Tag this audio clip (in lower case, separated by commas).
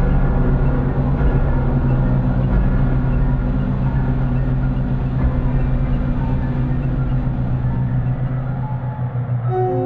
tick-tock, music